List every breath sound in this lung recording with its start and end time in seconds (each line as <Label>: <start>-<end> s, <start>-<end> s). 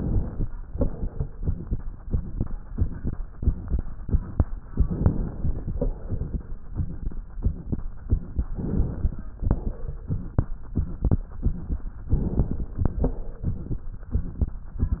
Inhalation: 4.74-5.75 s, 8.52-9.37 s, 12.12-12.98 s
Crackles: 4.74-5.75 s, 8.52-9.37 s, 12.12-12.98 s